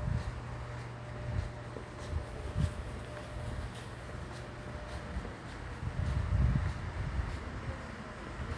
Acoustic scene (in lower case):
residential area